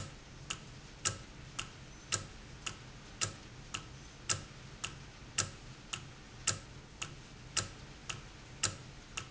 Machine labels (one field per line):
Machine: valve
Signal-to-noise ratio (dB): 6 dB